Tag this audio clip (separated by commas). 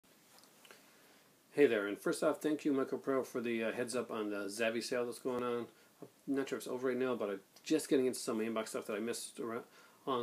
inside a small room, Speech